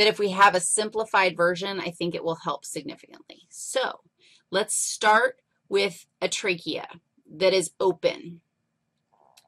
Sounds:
Speech

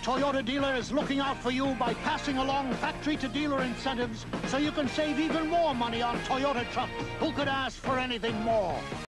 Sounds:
Music, Speech

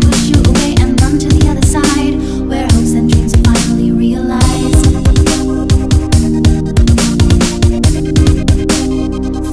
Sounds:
Electronic music, Dubstep, Music

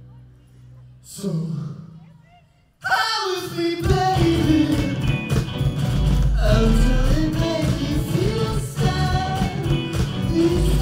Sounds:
Music

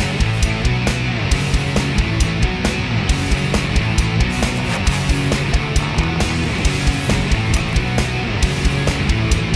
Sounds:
Music

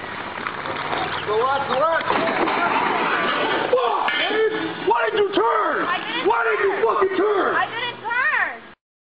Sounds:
Vehicle, Car, Motor vehicle (road), Speech

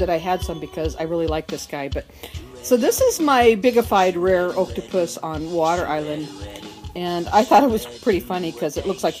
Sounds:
Music, Speech

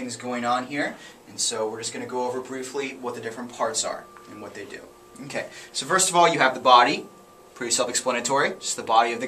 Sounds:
Speech

